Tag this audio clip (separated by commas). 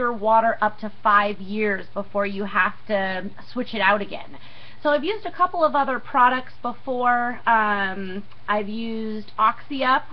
Speech